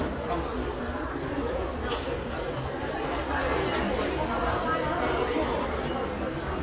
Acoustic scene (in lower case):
crowded indoor space